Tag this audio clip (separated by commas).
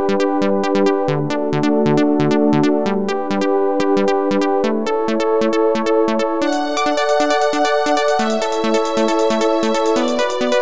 Exciting music, Music